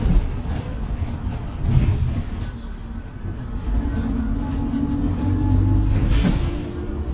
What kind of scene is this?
bus